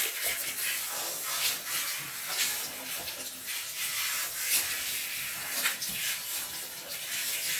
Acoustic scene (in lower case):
restroom